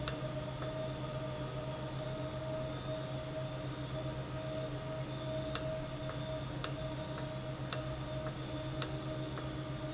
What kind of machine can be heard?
valve